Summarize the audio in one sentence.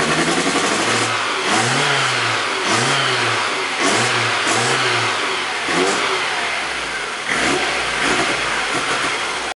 There is a drilling sound as the engine starts